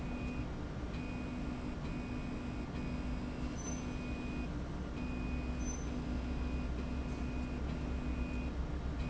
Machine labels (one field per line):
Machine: slide rail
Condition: normal